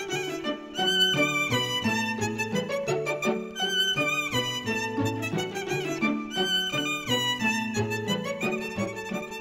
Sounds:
Musical instrument, Music, Violin

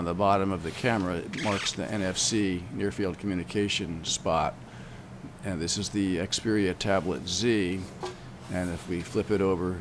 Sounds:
Speech

